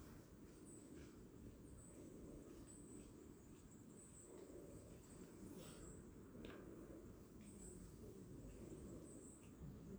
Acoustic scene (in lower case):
park